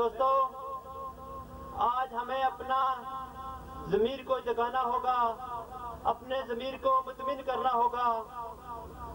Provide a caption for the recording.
Male voice speaking over a speaker and echoing